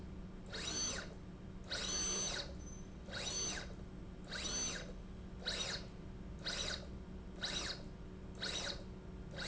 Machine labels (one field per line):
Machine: slide rail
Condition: abnormal